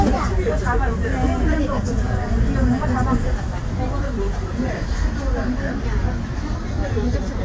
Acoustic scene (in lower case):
bus